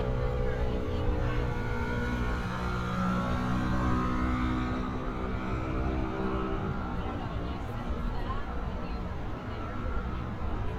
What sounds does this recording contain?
engine of unclear size